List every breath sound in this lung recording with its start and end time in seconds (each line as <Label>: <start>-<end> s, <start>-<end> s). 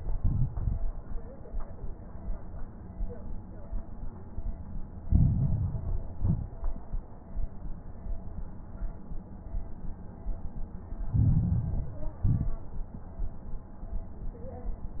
Inhalation: 5.04-6.08 s, 11.10-12.18 s
Exhalation: 0.00-0.83 s, 6.18-6.74 s, 12.22-12.71 s
Crackles: 0.00-0.83 s, 5.04-6.08 s, 6.18-6.74 s, 11.10-12.18 s, 12.22-12.71 s